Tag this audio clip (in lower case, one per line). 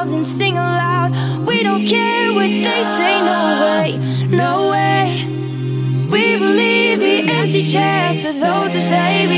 music